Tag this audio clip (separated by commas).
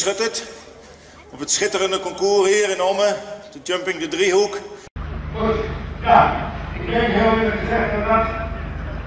Speech